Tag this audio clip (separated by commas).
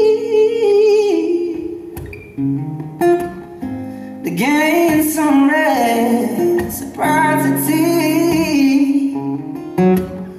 Music